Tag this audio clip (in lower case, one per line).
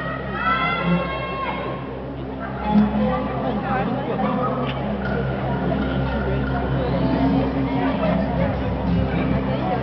speech
music